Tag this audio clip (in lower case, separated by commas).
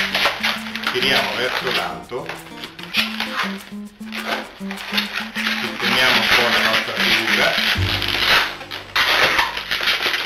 speech, music